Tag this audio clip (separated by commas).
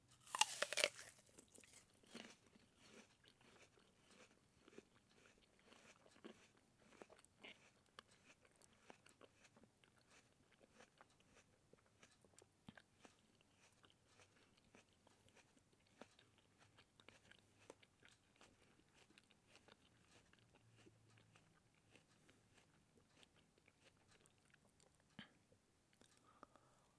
Chewing